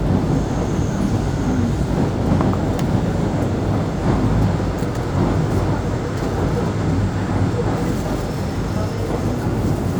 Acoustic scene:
subway train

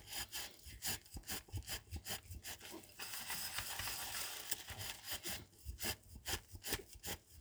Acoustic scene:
kitchen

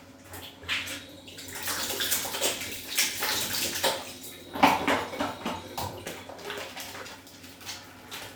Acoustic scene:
restroom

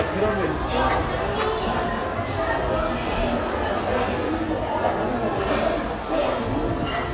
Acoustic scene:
crowded indoor space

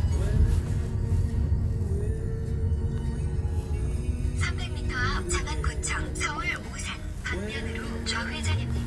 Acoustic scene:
car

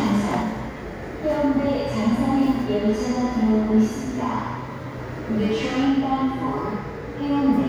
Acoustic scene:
subway station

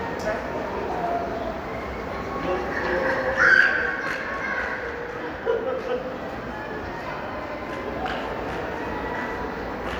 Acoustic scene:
crowded indoor space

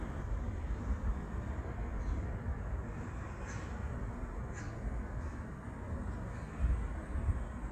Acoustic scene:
residential area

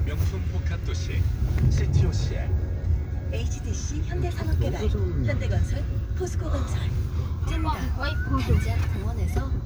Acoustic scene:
car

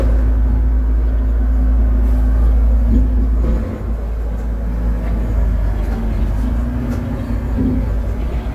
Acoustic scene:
bus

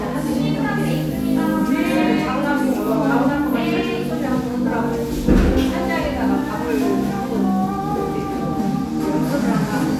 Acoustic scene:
cafe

